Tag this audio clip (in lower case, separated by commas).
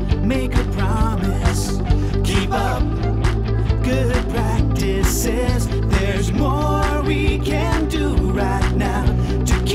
music